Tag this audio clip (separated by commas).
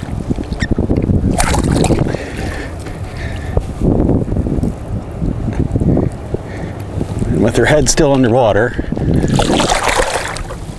Speech